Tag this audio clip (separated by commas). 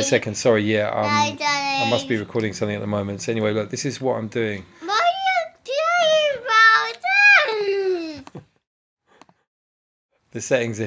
Speech